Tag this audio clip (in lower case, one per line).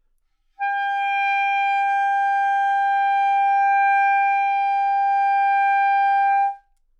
musical instrument
woodwind instrument
music